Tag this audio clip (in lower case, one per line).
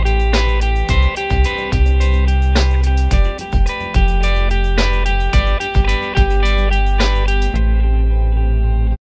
music